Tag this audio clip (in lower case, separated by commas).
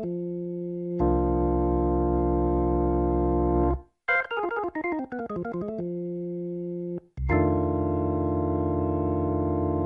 organ, hammond organ